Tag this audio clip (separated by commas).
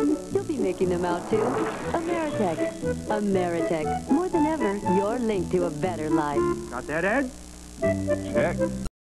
Speech, Music